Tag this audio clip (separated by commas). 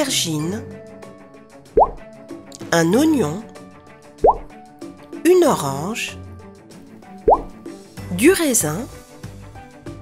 chopping food